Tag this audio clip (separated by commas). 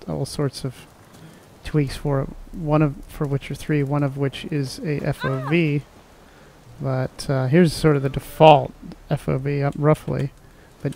Speech